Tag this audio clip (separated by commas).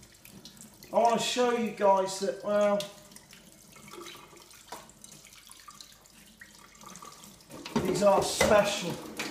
faucet, Water, Sink (filling or washing)